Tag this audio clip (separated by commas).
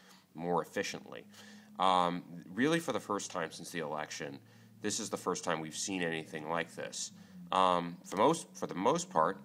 Speech